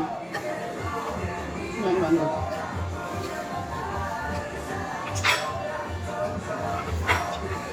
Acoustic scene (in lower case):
restaurant